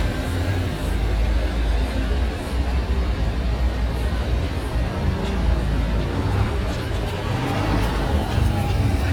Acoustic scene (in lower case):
street